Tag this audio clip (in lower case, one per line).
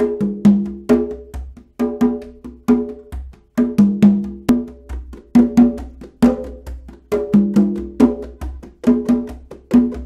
playing timbales